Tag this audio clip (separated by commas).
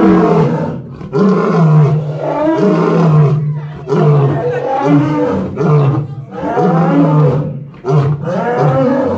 lions roaring